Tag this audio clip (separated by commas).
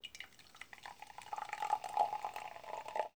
Liquid